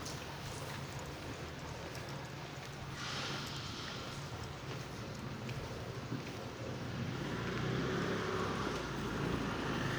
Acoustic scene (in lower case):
residential area